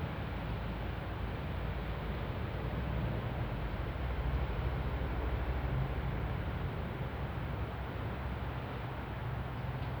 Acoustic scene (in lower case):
residential area